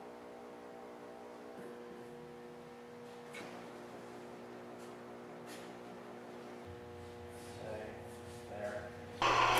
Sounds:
Speech

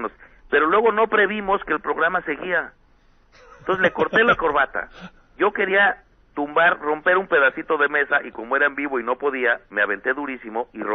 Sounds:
Speech

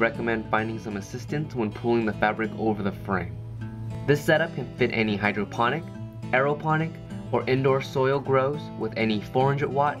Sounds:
Music, Speech

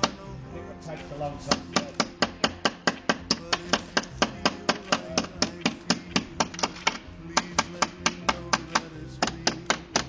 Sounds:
Speech, Music

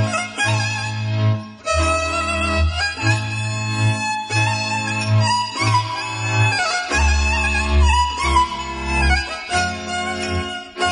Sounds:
Music

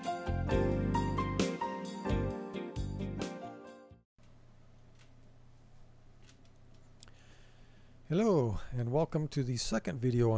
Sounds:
Music, Speech

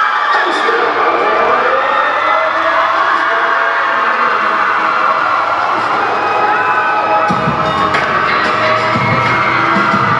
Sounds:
Music, Speech, Whoop

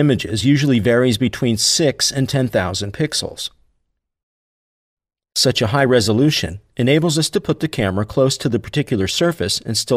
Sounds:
Speech

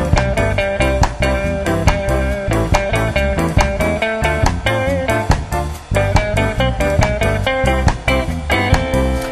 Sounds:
Ska, Soul music, Music

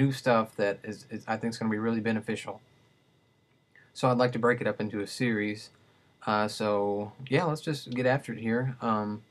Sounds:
Speech

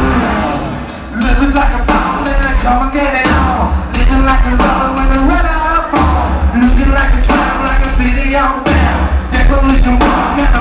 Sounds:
Music, Speech

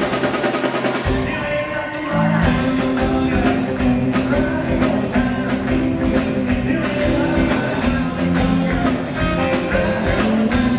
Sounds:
Male singing, Music

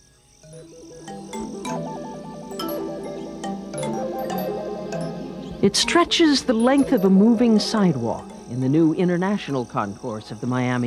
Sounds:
Speech, Music

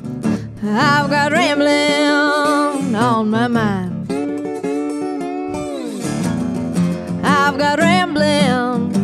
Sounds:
Music, Acoustic guitar

